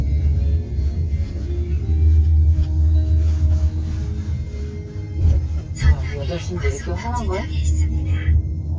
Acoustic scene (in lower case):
car